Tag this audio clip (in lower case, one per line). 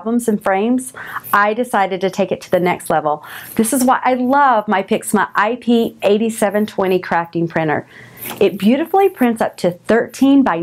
speech